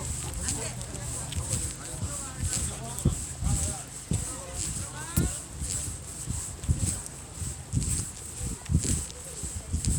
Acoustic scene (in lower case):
residential area